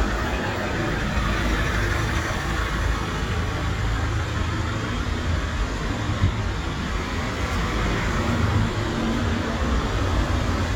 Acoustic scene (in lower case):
street